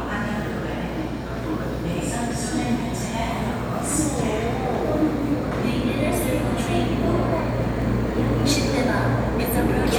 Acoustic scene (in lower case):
subway station